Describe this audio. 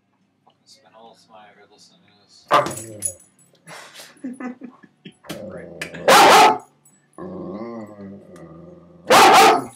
A person speaks, a dog snaps and barks, a person laughs